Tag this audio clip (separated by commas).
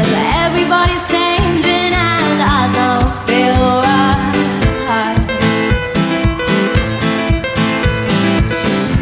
Pop music, Singing